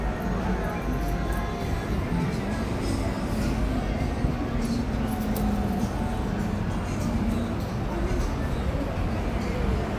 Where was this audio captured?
on a street